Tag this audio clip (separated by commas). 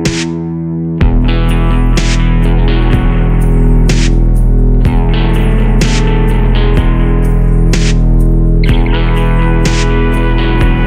Strum, Plucked string instrument, Musical instrument, Electric guitar, Guitar, Music